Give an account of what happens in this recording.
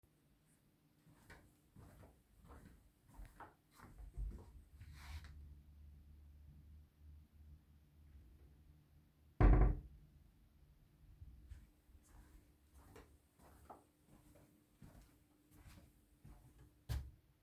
I walked to a wardrobe opened it and then closed it, then I walked on.